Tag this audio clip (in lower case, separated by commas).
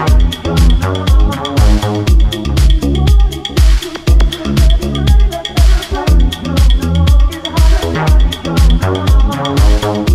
music